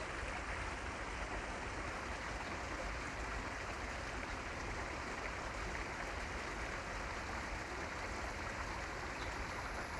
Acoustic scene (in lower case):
park